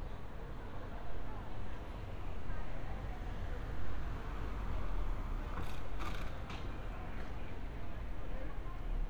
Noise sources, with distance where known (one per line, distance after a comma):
person or small group talking